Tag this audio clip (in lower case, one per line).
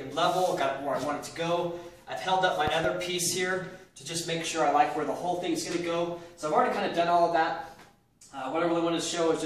speech